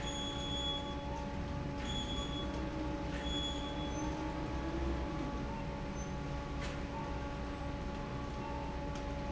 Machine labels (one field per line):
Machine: fan